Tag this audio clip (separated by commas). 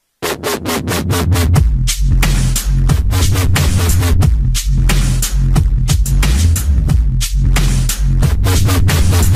Electronic music, Music